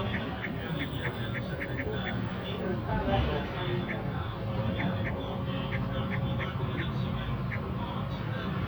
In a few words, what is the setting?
bus